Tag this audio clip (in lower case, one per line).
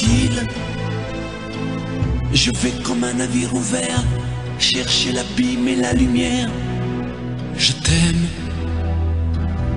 speech
music